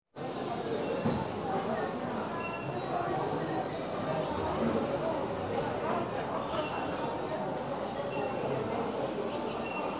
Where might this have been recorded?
in a crowded indoor space